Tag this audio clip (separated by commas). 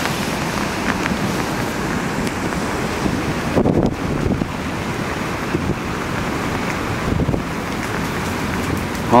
Rain, Speech